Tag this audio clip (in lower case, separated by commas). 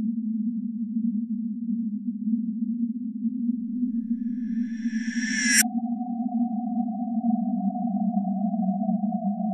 music, electronic music